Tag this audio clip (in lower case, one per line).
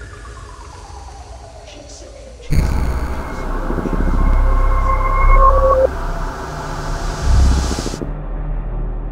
electronic music
music